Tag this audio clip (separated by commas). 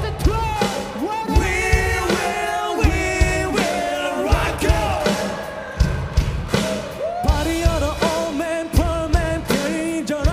Progressive rock, Music